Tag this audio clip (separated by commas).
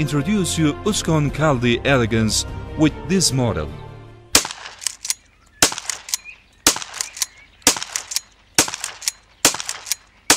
Music, Speech